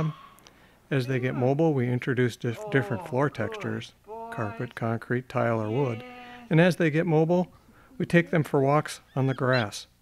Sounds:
Speech, pets, Animal

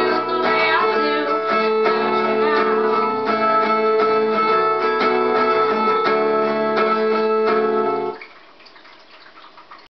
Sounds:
Plucked string instrument, Guitar, Strum, Music, Musical instrument

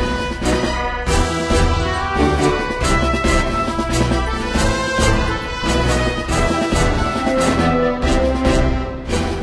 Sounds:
Music

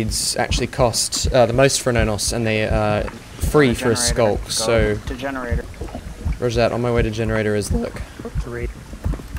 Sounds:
Speech

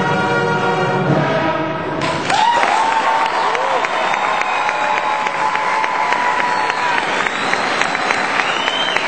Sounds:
Classical music, Orchestra, people clapping, Music, Musical instrument, Applause

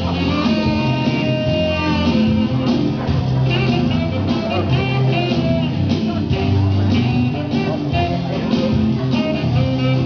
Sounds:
Speech, Music

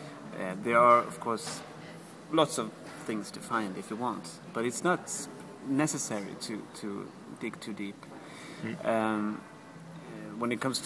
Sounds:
Speech, man speaking

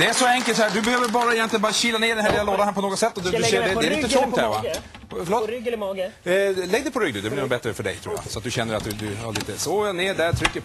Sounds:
Speech

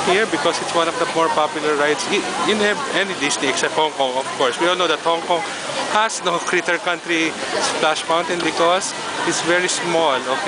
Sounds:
Water, Speech

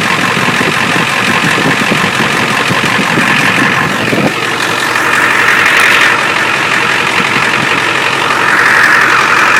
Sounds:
Idling

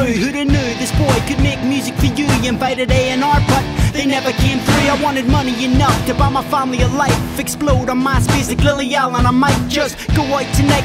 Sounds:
Music, Dance music

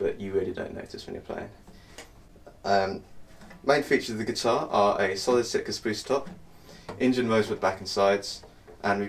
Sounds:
Speech

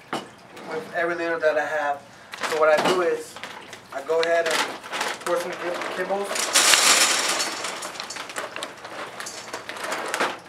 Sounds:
Speech

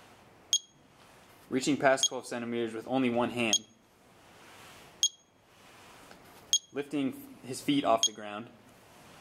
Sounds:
Speech, inside a small room

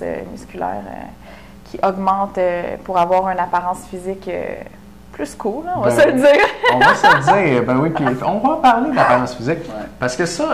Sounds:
Speech

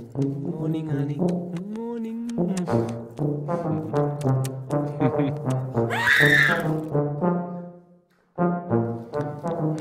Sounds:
Brass instrument

